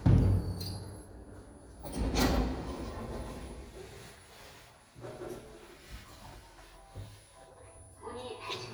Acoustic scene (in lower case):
elevator